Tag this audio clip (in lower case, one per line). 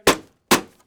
wood
door
home sounds
knock